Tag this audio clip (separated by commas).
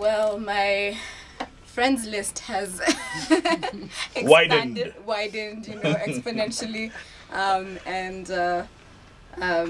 Speech, Female speech, man speaking, Conversation